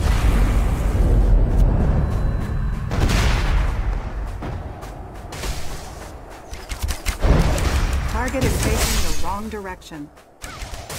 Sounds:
Speech, Fusillade

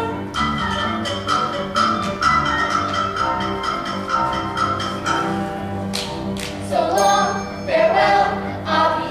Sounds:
Music

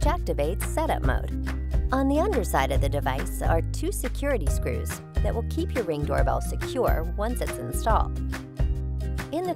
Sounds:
Music, Speech

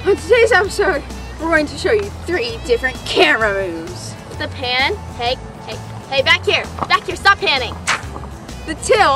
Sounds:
Music, Speech

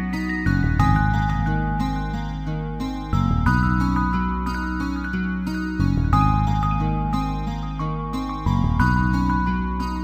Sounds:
Music

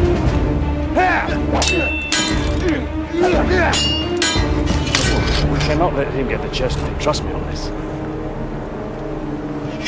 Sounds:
Speech, Music

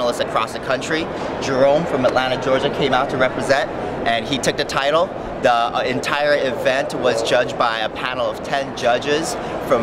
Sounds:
Speech

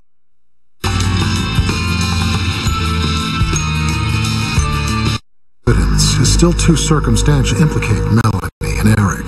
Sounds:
Television, Music, Speech

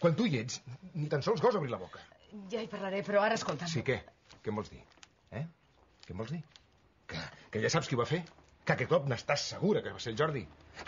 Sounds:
Speech, inside a small room

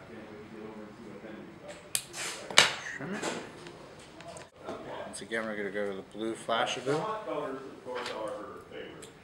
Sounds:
Speech

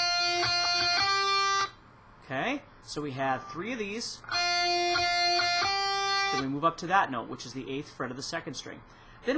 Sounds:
Music, Speech, Guitar, Musical instrument, Plucked string instrument

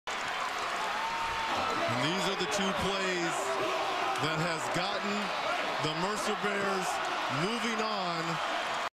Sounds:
Speech

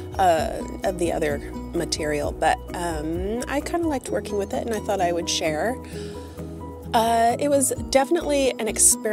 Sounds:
Speech, Music

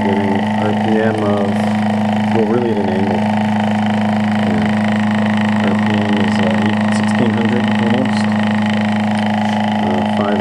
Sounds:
Speech

